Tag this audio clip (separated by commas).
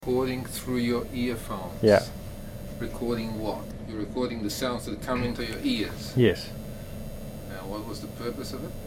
Conversation, Human voice, Speech